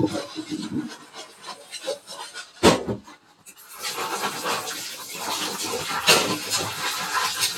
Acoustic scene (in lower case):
kitchen